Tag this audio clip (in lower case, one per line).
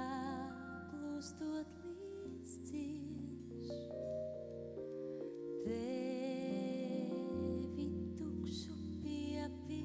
music